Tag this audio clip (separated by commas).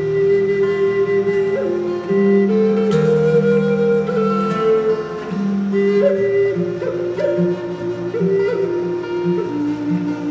Music, Guitar, Strum, Acoustic guitar, Plucked string instrument, Musical instrument